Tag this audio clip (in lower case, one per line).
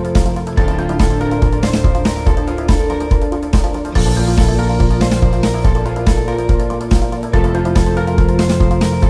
background music
music